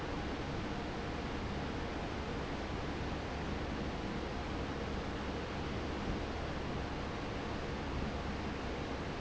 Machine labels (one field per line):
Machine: fan